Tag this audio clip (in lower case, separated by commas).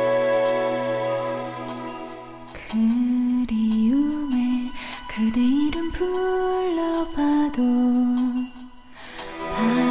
music, female singing